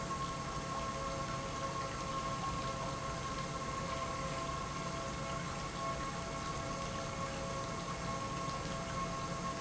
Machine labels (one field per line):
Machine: pump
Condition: normal